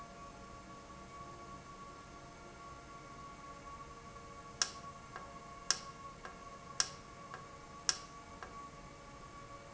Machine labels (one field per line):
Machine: valve